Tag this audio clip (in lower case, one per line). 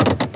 motor vehicle (road)
car
vehicle